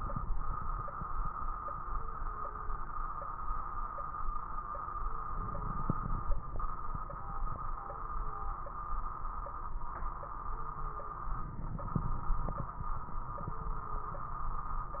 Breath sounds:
5.24-6.27 s: inhalation
5.24-6.27 s: crackles
11.36-12.35 s: inhalation
11.36-12.35 s: crackles

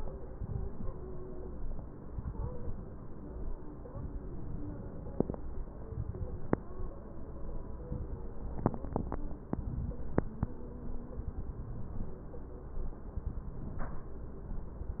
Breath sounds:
0.30-0.95 s: inhalation
0.30-0.95 s: crackles
2.17-2.81 s: inhalation
2.17-2.81 s: crackles
3.91-4.77 s: inhalation
3.91-4.77 s: crackles
5.91-6.76 s: inhalation
5.91-6.76 s: crackles
8.57-9.27 s: inhalation
8.57-9.27 s: crackles
11.31-12.16 s: inhalation
11.31-12.16 s: crackles
13.57-14.19 s: inhalation
13.57-14.19 s: crackles

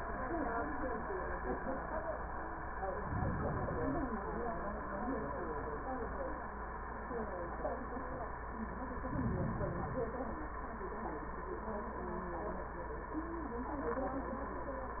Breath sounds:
2.87-4.18 s: inhalation
8.99-10.31 s: inhalation

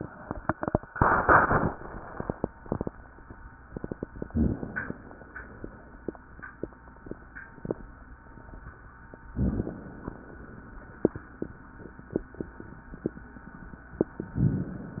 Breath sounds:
4.31-4.62 s: rhonchi
4.32-5.24 s: inhalation
9.32-9.71 s: rhonchi
9.32-10.44 s: inhalation

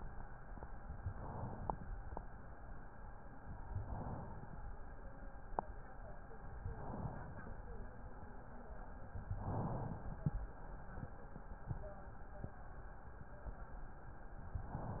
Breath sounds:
0.91-2.05 s: inhalation
3.60-4.74 s: inhalation
6.65-7.79 s: inhalation
9.34-10.48 s: inhalation
14.49-15.00 s: inhalation

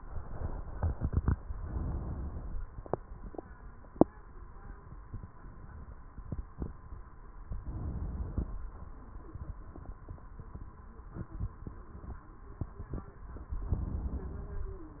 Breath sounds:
1.59-2.62 s: inhalation
7.54-8.57 s: inhalation
13.66-14.69 s: inhalation

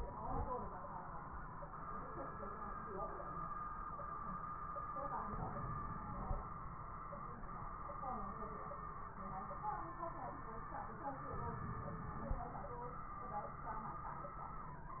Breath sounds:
5.29-7.04 s: inhalation
11.36-12.69 s: inhalation

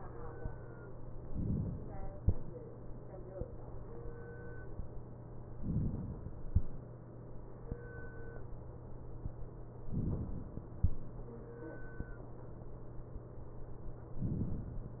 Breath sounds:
1.26-2.16 s: inhalation
5.58-6.48 s: inhalation
9.94-10.76 s: inhalation

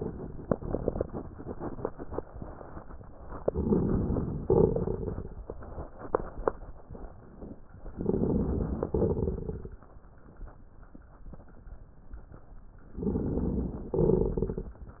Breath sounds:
3.40-4.40 s: inhalation
3.40-4.40 s: crackles
4.50-5.47 s: exhalation
4.50-5.47 s: crackles
7.93-8.90 s: inhalation
7.93-8.90 s: crackles
8.92-9.89 s: exhalation
8.92-9.89 s: crackles
12.92-13.89 s: inhalation
12.92-13.89 s: crackles
13.98-14.82 s: exhalation
13.98-14.82 s: crackles

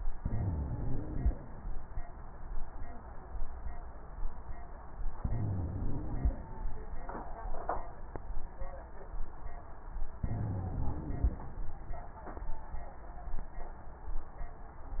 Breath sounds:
0.15-1.33 s: inhalation
0.15-1.33 s: wheeze
5.19-6.36 s: inhalation
5.19-6.36 s: wheeze
10.26-11.44 s: inhalation
10.26-11.44 s: wheeze

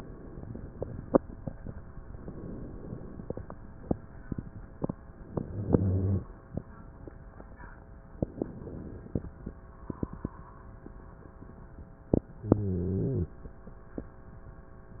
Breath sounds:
2.15-3.31 s: inhalation
5.28-6.22 s: inhalation
5.40-6.25 s: stridor
8.15-9.32 s: inhalation
12.39-13.39 s: inhalation
12.39-13.39 s: stridor

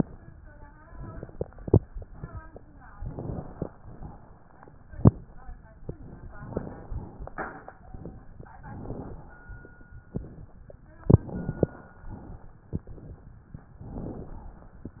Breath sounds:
2.96-3.72 s: crackles
2.98-3.72 s: inhalation
6.32-7.00 s: inhalation
6.32-7.00 s: crackles
8.60-9.36 s: inhalation
8.60-9.36 s: crackles
11.04-11.80 s: inhalation
11.04-11.80 s: crackles
13.81-14.57 s: inhalation
13.81-14.57 s: crackles

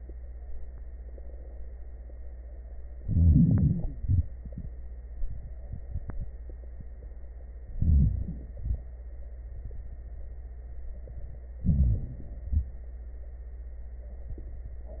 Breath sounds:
3.01-3.96 s: crackles
3.01-4.00 s: inhalation
4.00-4.42 s: exhalation
4.00-4.42 s: crackles
7.73-8.59 s: inhalation
7.73-8.59 s: crackles
8.61-9.01 s: exhalation
8.61-9.01 s: crackles
11.61-12.44 s: inhalation
11.61-12.44 s: crackles
12.49-12.89 s: exhalation
12.49-12.89 s: crackles

